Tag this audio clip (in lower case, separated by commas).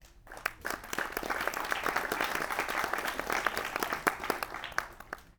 human group actions, applause